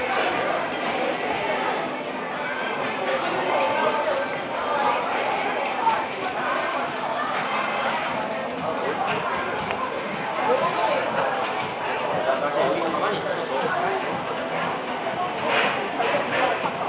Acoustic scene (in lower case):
cafe